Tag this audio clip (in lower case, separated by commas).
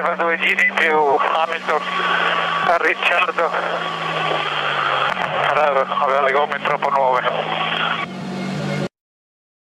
speech